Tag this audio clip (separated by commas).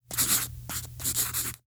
home sounds, Writing